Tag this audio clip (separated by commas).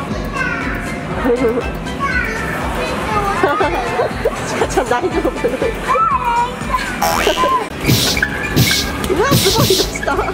bouncing on trampoline